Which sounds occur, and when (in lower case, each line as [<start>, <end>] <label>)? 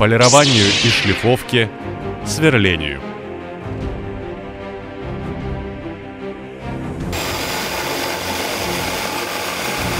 [0.00, 1.65] male speech
[0.00, 9.95] music
[0.22, 1.22] drill
[2.20, 2.96] male speech
[7.08, 9.95] power tool